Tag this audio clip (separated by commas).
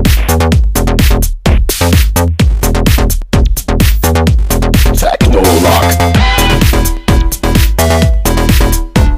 Techno, Music